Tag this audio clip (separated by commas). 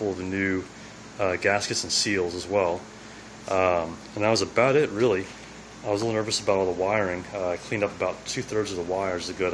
Speech